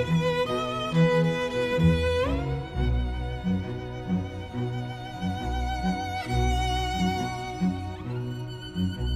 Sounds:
Bowed string instrument, Violin, Cello

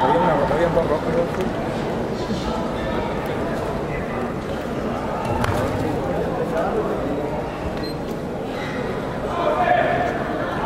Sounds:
Speech

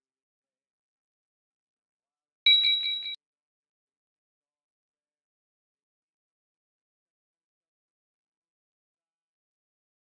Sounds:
Silence

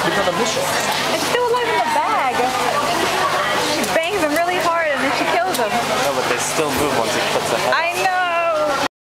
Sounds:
Speech

